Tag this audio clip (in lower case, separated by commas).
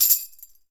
music, tambourine, musical instrument, percussion